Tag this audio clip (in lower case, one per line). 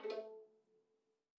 music
bowed string instrument
musical instrument